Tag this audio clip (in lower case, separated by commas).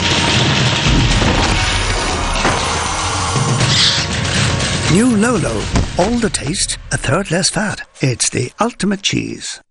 music, speech